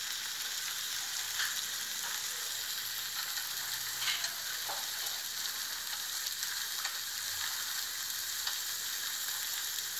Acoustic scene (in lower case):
restaurant